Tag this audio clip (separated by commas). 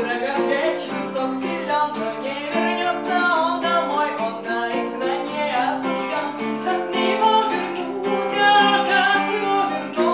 Strum, Musical instrument, Plucked string instrument, Acoustic guitar, Music, Guitar